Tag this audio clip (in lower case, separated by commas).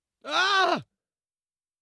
human voice, screaming